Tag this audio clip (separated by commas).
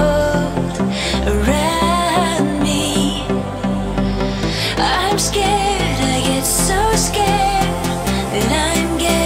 Music, Pop music